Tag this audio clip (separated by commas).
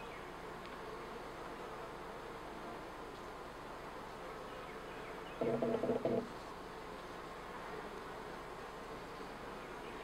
Animal